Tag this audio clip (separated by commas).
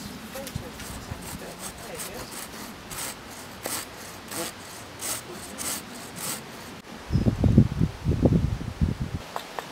Wood, Sawing